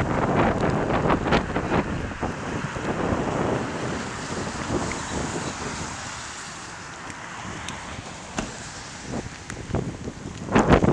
Thunder booms in the distance as traffic passes by